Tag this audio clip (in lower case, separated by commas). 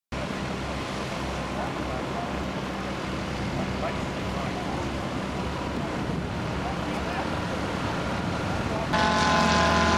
vehicle, aircraft, speech, aircraft engine